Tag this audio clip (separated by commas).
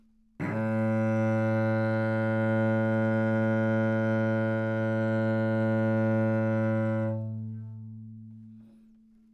Bowed string instrument, Music, Musical instrument